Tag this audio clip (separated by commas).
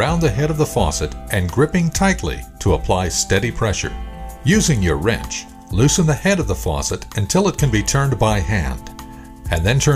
Speech, Music, monologue